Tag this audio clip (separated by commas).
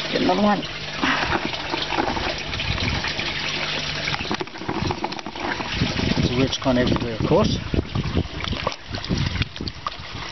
Speech